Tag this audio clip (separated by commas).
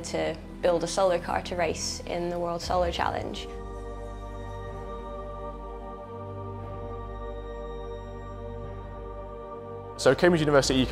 Music, Speech